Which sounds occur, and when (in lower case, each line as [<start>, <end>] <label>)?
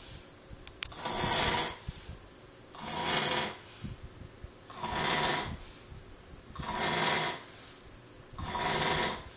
[0.00, 0.34] breathing
[0.00, 9.35] background noise
[0.56, 0.69] tick
[0.80, 0.90] tick
[0.92, 1.73] snoring
[1.71, 2.15] breathing
[2.70, 3.50] snoring
[3.48, 4.05] breathing
[4.68, 5.53] snoring
[5.51, 5.92] breathing
[6.50, 7.36] snoring
[7.39, 7.83] breathing
[8.34, 9.14] snoring